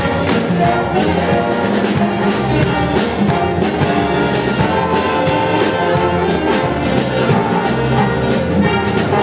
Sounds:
Orchestra, Music

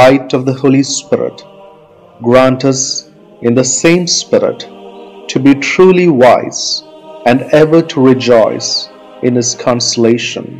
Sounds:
Music, Speech

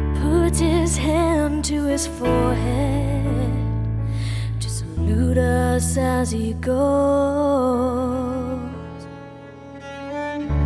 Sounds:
Music, Cello

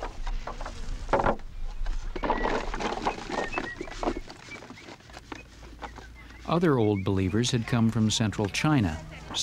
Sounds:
outside, rural or natural, Speech

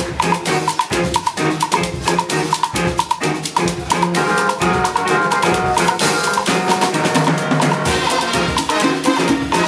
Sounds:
Salsa music, Music

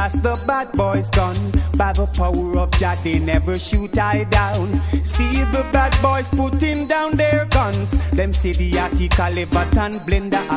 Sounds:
Music, Funk

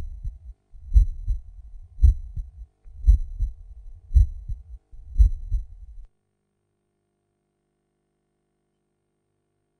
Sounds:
Heart sounds

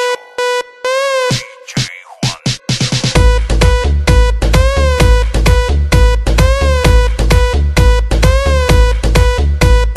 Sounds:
Music

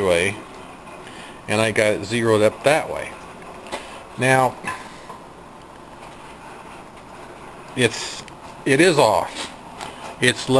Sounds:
Speech

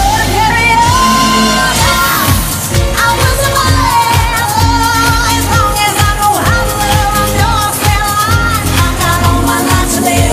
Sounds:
Music of Asia

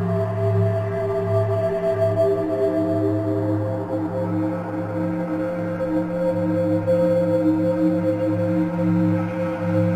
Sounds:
Music

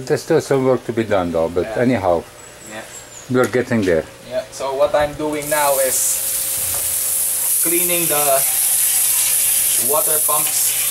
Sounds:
faucet, outside, rural or natural, Speech

